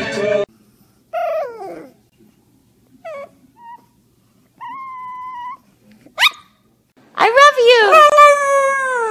A dog whimpers followed by a woman speaking